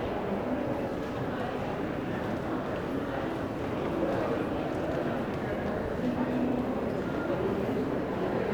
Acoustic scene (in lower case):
crowded indoor space